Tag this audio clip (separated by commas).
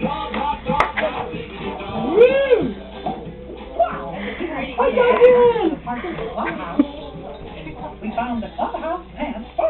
Music, Speech